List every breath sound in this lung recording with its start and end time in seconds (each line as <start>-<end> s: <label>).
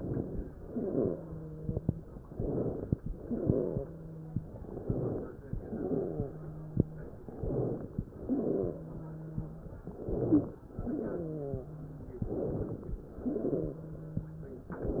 0.00-0.57 s: inhalation
0.57-1.14 s: exhalation
0.57-2.01 s: wheeze
2.28-2.98 s: inhalation
3.07-3.87 s: exhalation
3.07-4.59 s: wheeze
4.59-5.47 s: inhalation
5.54-6.38 s: exhalation
5.54-7.14 s: wheeze
7.13-8.01 s: inhalation
8.04-8.84 s: exhalation
8.25-9.75 s: wheeze
9.83-10.66 s: inhalation
10.78-11.61 s: exhalation
10.78-12.22 s: wheeze
12.26-13.09 s: inhalation
13.11-13.95 s: exhalation
13.26-14.63 s: wheeze